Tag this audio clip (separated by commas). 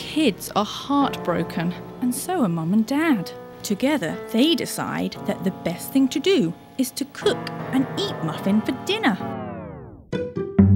Music, Speech